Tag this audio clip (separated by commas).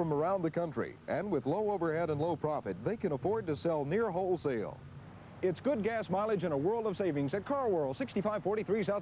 Speech